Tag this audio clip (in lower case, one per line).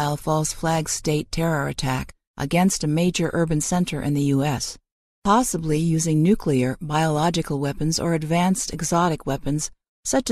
speech